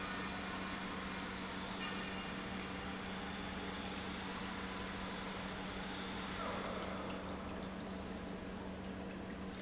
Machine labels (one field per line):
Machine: pump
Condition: normal